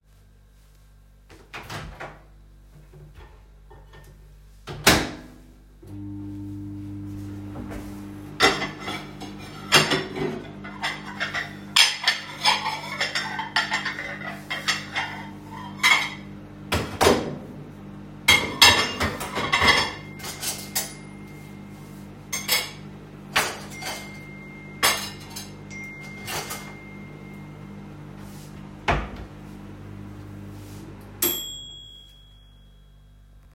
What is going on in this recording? I put food in the microwave to reheat and was setting up my plates. While the food was reheating I got messages during it.